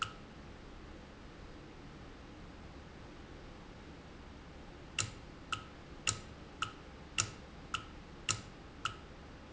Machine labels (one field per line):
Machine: valve